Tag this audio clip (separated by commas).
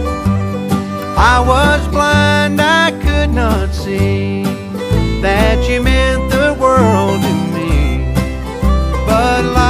Music